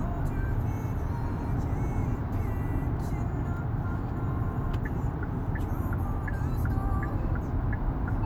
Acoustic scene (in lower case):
car